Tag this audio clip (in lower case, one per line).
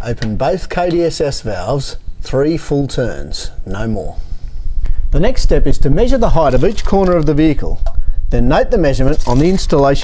speech